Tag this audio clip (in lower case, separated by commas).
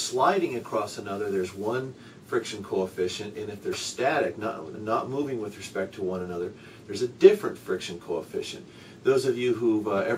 speech